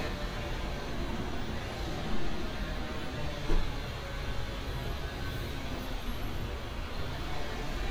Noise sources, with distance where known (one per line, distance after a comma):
unidentified powered saw, far